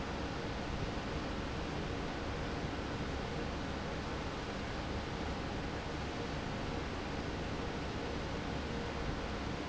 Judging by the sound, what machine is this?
fan